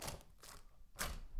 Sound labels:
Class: window; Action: opening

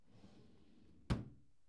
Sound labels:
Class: drawer; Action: closing; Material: wooden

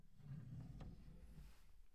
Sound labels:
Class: drawer; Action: opening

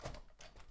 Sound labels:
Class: window; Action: opening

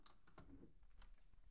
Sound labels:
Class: window; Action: opening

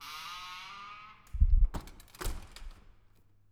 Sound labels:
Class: window; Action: closing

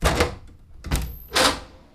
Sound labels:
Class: door; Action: opening; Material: wooden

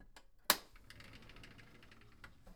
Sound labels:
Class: window; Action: opening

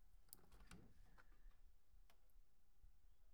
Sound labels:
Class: window; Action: opening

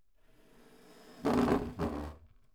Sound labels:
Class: furniture moving; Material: wooden; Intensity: medium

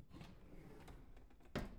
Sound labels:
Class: drawer; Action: opening; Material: wooden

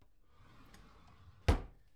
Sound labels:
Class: drawer; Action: closing; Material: wooden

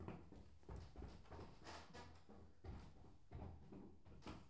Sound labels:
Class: footsteps; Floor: wooden floor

